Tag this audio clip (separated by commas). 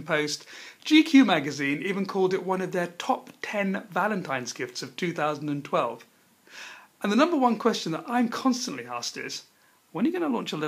Speech